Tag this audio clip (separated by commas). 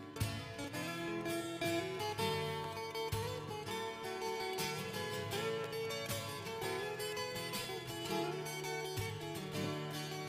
Music